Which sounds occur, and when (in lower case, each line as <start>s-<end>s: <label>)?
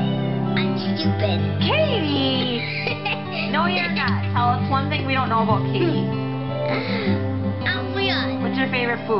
0.0s-9.1s: music
0.5s-9.1s: conversation
0.6s-1.4s: kid speaking
1.6s-2.6s: woman speaking
2.4s-3.2s: laughter
3.3s-3.5s: breathing
3.5s-4.2s: woman speaking
3.7s-4.4s: laughter
4.0s-4.1s: tick
4.3s-5.9s: woman speaking
5.2s-5.3s: generic impact sounds
6.7s-7.2s: breathing
7.6s-8.3s: kid speaking
8.4s-9.1s: woman speaking